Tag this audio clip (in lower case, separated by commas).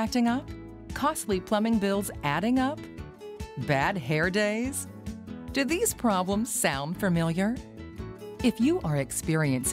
music, speech